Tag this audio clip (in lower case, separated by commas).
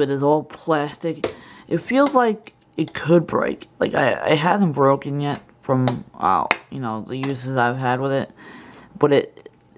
speech